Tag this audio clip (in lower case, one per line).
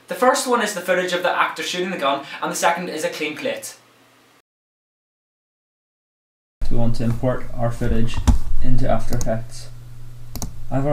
speech